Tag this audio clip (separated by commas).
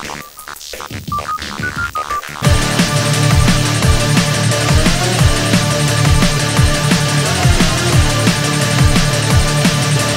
Music